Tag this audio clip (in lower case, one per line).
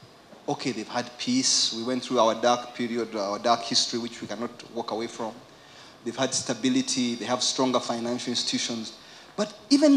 speech